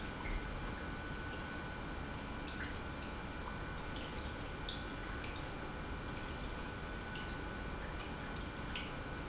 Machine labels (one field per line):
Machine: pump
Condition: normal